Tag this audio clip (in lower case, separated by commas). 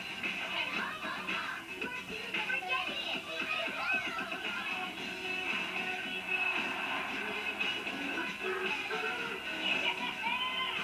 music, speech